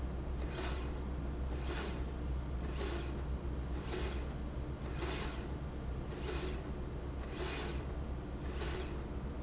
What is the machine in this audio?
slide rail